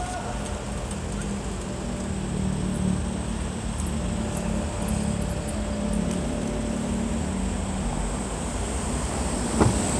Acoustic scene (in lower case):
street